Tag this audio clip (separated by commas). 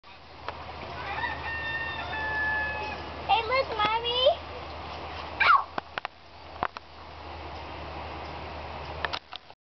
Chicken, cock-a-doodle-doo, Fowl